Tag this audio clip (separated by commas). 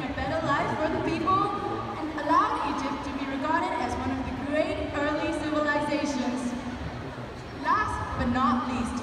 Speech